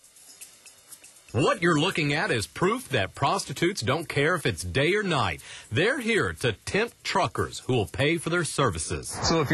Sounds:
Speech, Music

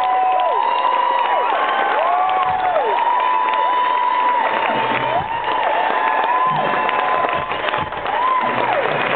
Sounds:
Music

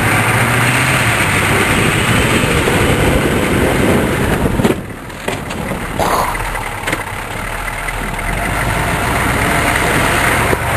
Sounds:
Vehicle

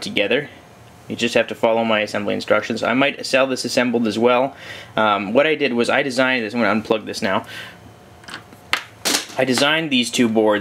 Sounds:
inside a small room, Speech

